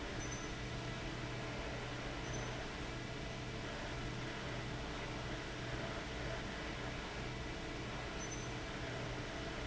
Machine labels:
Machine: fan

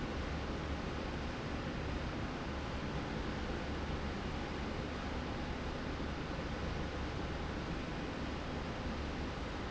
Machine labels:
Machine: slide rail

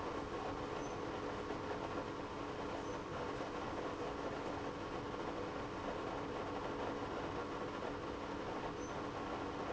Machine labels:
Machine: pump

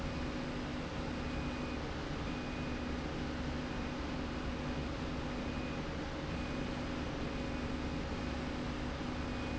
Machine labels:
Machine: slide rail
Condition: normal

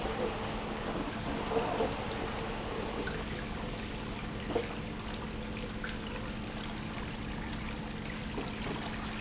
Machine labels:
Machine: pump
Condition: abnormal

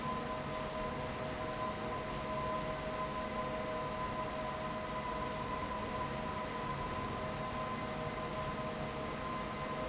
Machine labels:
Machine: fan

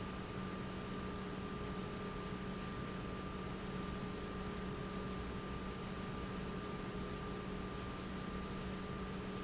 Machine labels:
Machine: pump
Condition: normal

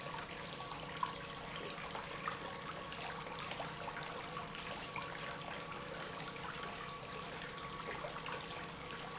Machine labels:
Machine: pump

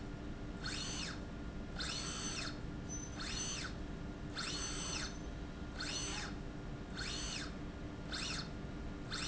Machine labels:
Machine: slide rail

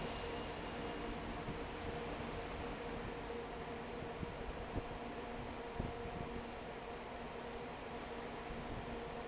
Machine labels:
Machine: fan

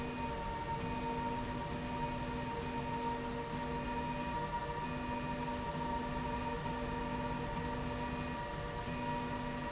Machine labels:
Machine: slide rail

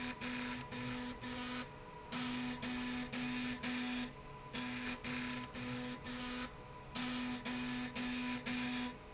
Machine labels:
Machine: slide rail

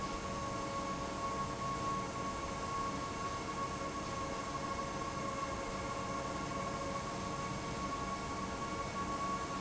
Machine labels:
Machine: fan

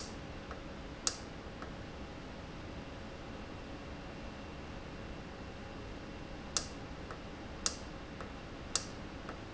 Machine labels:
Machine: valve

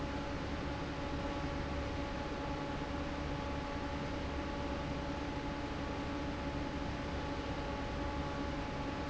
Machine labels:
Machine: fan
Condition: normal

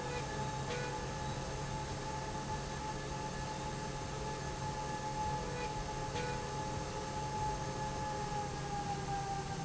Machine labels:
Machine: slide rail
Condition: normal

